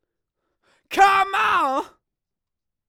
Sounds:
human voice, shout, yell

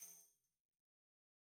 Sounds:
tambourine, music, percussion, musical instrument

